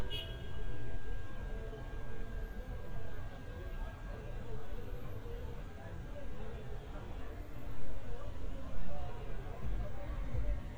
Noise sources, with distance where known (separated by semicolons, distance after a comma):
car horn, near; person or small group talking